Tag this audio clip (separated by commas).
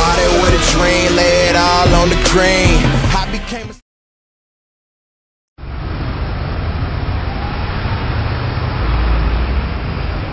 Music